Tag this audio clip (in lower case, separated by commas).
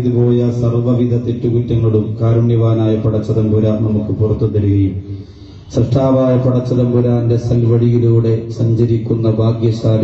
male speech, speech, monologue